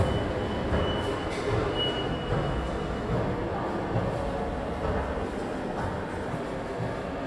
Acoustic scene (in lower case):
subway station